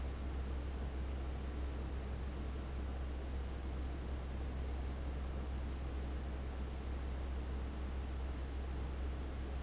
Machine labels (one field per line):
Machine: fan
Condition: abnormal